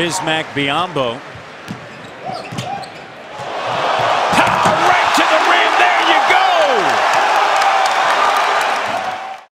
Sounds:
Basketball bounce

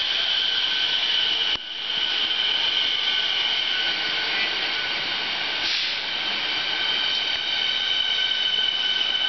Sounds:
Railroad car, metro, Train, Rail transport

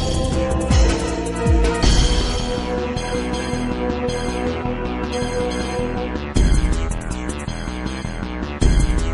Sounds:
Music, Scary music

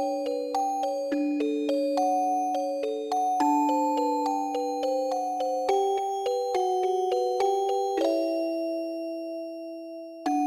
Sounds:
Music

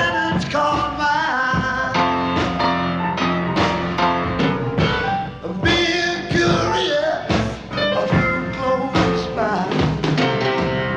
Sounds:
Music

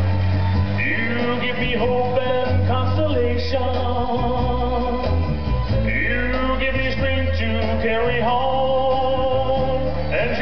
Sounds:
Male singing, Music

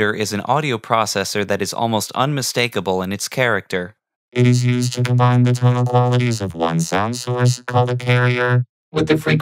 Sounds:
Effects unit, Sound effect, Sidetone, Speech

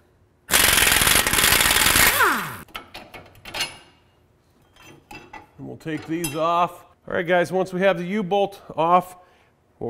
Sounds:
inside a large room or hall, Speech

